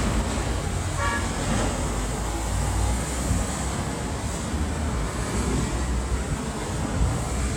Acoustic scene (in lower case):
street